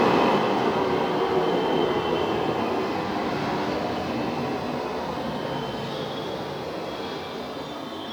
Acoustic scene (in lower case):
subway station